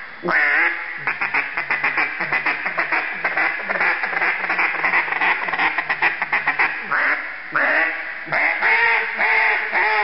A duck repeatedly quacks loudly